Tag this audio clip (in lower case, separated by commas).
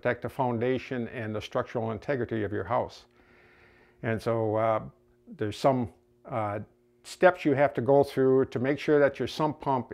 speech